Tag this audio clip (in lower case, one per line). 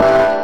music
keyboard (musical)
musical instrument
piano